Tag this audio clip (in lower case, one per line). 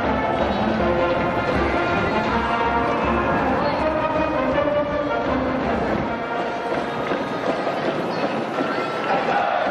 people cheering